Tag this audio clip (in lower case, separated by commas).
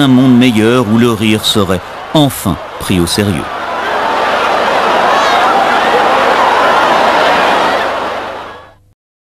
speech